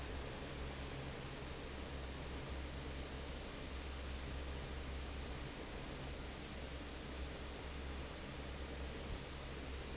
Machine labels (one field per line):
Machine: fan